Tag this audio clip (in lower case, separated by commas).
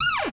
door, cupboard open or close, home sounds